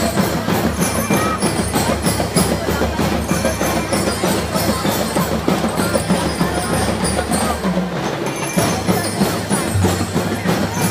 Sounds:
bass drum, drum kit, music, drum, speech, musical instrument

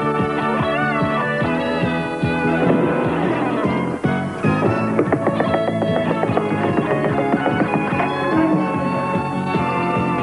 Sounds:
music

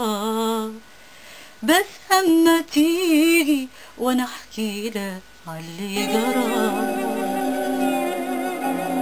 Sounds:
music

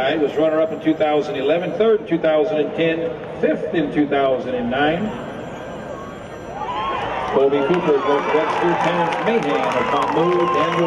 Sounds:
speech

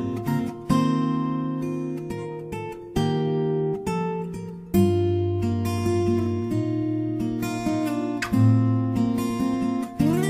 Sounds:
plucked string instrument, guitar, strum, musical instrument, music

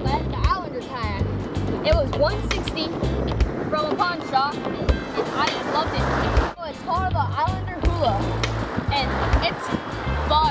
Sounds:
music, boat, canoe, speech

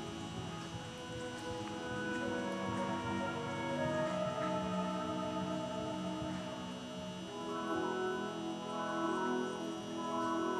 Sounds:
animal, horse

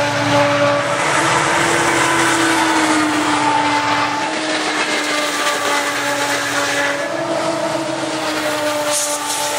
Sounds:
train, vehicle

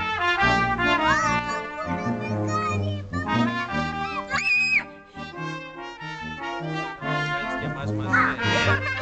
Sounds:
music, speech

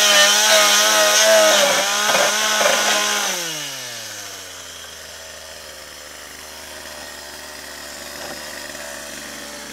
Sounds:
power tool, chainsaw, chainsawing trees

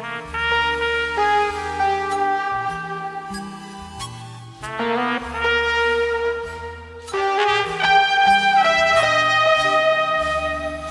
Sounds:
music, trombone, jazz

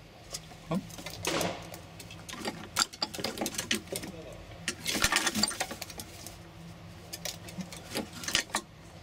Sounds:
speech, bird

